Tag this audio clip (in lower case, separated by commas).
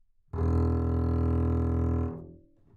bowed string instrument, music, musical instrument